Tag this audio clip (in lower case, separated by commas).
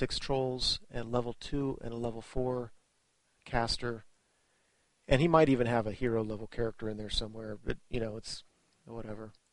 speech